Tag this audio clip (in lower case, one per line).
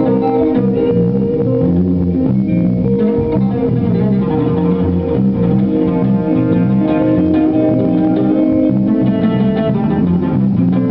musical instrument
music
inside a small room